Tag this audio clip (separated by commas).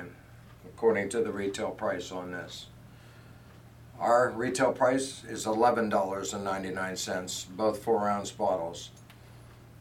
Speech